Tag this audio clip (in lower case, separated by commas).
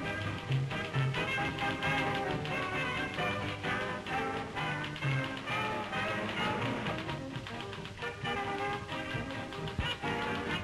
music, typewriter